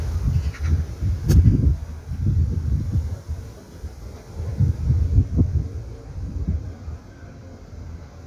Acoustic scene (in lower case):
park